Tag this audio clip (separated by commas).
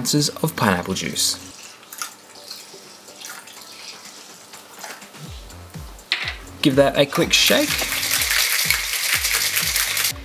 Speech